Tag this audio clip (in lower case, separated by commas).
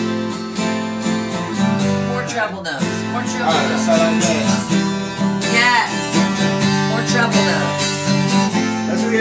music, speech